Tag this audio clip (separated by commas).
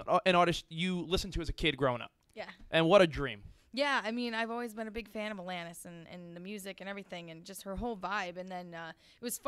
Speech